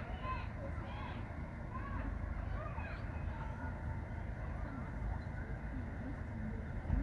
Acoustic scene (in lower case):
residential area